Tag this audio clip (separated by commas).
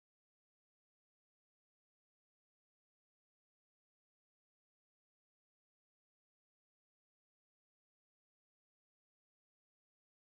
playing tuning fork